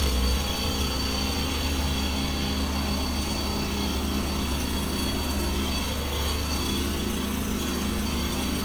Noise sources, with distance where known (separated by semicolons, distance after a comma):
jackhammer